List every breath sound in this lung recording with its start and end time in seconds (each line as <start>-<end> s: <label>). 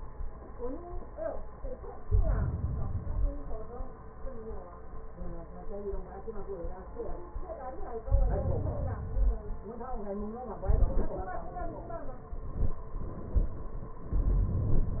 1.94-3.05 s: inhalation
3.05-4.17 s: exhalation
8.04-9.07 s: inhalation
9.06-10.27 s: exhalation